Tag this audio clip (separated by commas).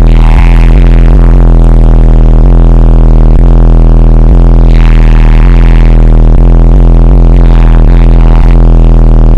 Motor vehicle (road), Car